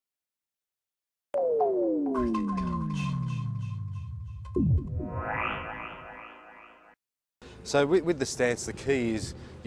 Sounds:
speech

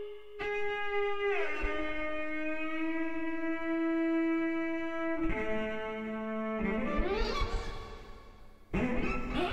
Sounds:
music, musical instrument, violin

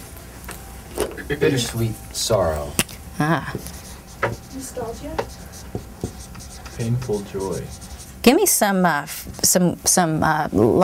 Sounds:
writing, speech

